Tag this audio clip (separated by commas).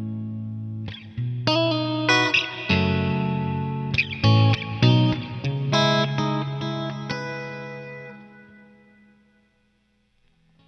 Music